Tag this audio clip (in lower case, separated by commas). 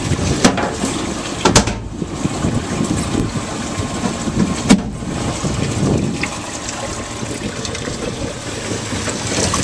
wind, wind noise (microphone), water vehicle